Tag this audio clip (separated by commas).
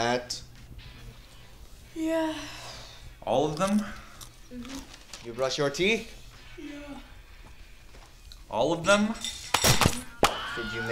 Music, Speech